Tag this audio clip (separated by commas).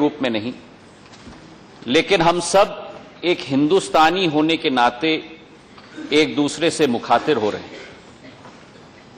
Narration, Speech, Male speech